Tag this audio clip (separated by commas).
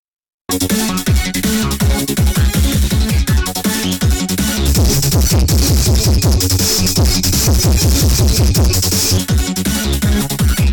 Music, Dubstep, Electronic music